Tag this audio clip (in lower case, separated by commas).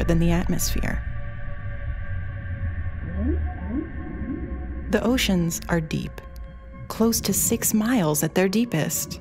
whale vocalization, music, speech